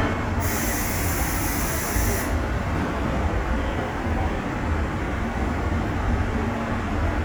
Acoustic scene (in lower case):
subway station